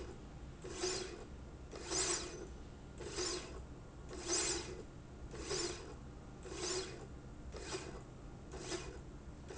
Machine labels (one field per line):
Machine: slide rail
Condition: normal